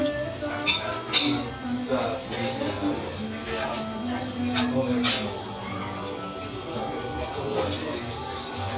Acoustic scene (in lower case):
restaurant